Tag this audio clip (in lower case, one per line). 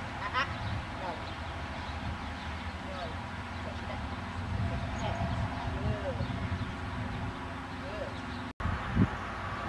animal